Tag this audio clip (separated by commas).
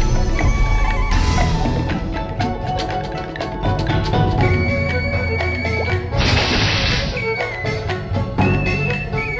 Music